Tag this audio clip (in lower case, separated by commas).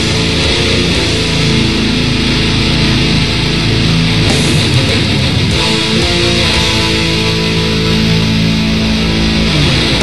playing electric guitar, guitar, musical instrument, electric guitar, plucked string instrument, music